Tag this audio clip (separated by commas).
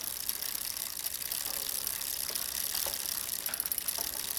Vehicle, Bicycle